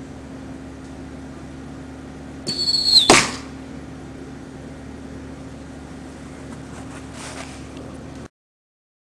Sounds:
Arrow

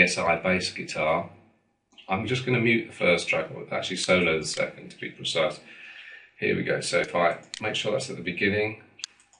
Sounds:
Speech

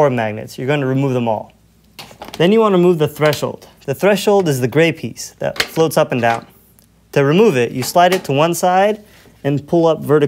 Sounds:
Speech

